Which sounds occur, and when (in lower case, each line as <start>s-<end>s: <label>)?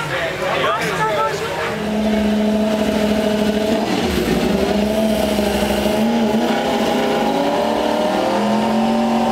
0.0s-1.7s: crowd
1.5s-9.3s: car
1.6s-4.1s: vroom
4.3s-9.3s: vroom